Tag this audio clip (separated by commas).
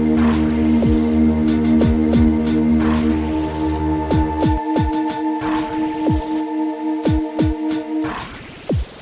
Music